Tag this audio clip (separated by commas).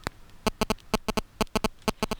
Alarm, Telephone